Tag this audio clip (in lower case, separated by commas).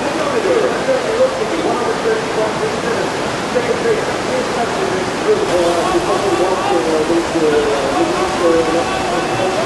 speech